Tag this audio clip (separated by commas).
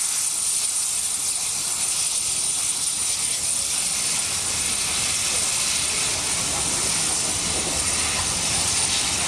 Speech, Train, Rail transport, Vehicle